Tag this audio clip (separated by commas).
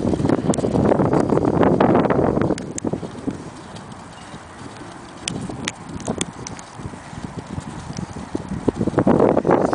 Horse, Animal, outside, rural or natural